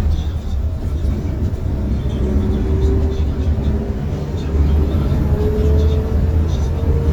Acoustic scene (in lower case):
bus